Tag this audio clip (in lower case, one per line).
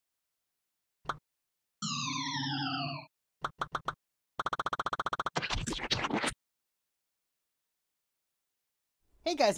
speech